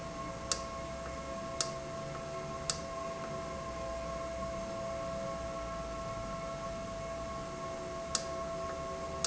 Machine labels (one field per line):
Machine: valve